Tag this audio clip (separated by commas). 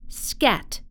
Human voice, woman speaking, Speech